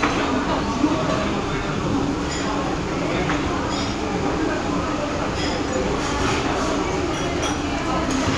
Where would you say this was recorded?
in a restaurant